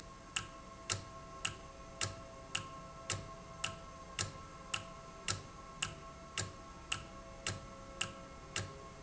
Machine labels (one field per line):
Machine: valve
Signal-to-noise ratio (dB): 6 dB